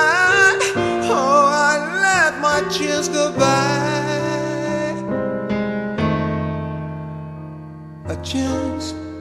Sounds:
keyboard (musical)
piano

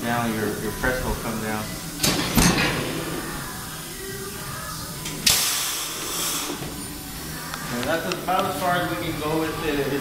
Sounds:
steam
hiss

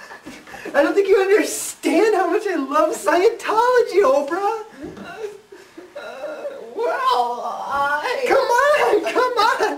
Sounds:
chortle
speech

